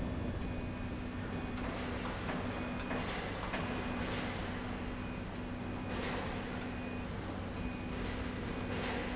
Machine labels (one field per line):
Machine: slide rail